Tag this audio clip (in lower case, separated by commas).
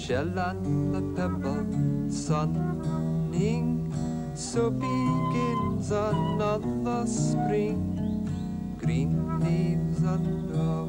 music